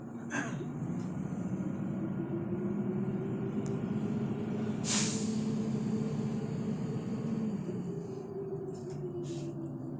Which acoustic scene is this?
bus